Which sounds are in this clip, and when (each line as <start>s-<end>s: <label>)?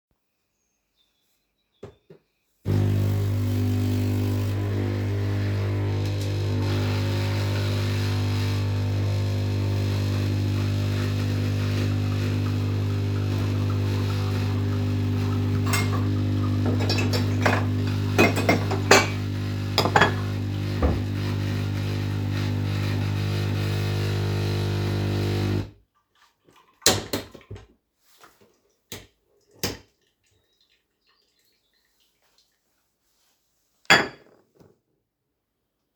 2.6s-25.8s: coffee machine
15.6s-20.4s: cutlery and dishes
33.8s-34.3s: cutlery and dishes